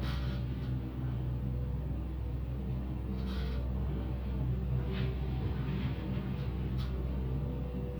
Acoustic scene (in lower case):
elevator